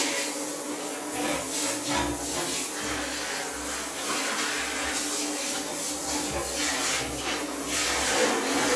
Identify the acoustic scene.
restroom